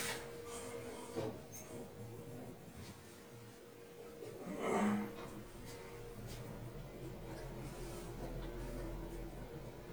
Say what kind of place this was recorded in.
elevator